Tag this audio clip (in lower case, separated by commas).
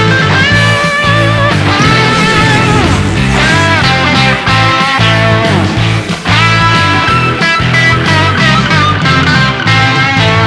musical instrument, music, electric guitar, strum